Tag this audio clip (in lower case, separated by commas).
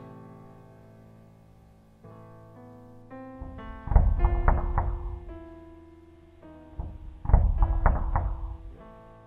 music